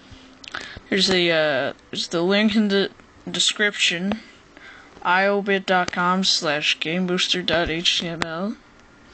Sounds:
speech

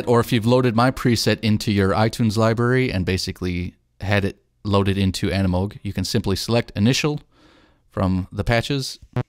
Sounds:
speech
music

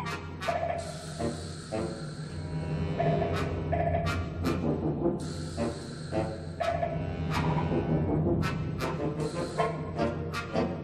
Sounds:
music

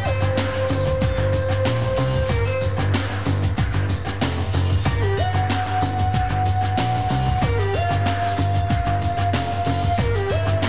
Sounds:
music

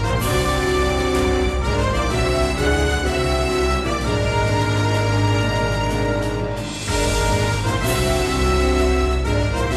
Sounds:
music
theme music
background music

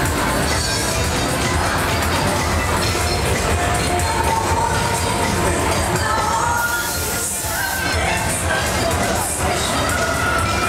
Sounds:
music
speech

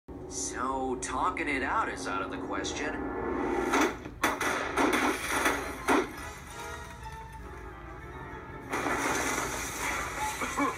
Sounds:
inside a small room
music
speech

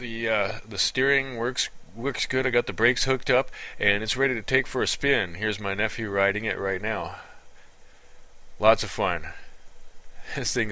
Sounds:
speech

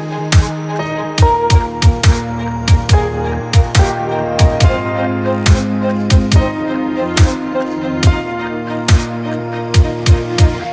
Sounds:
electronic music
music

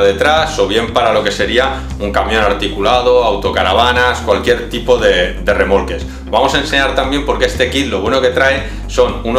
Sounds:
speech
music

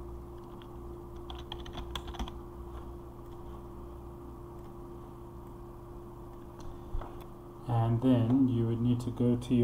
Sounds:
speech

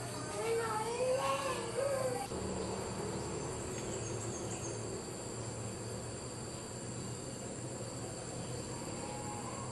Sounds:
outside, rural or natural
animal
speech

